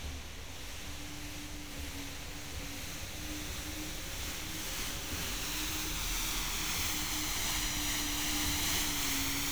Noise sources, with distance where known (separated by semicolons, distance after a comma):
engine of unclear size